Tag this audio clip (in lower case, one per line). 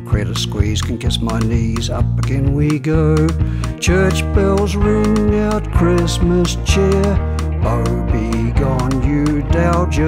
music